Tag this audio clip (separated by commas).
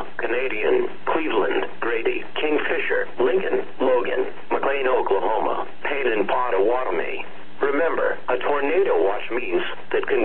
Speech, Radio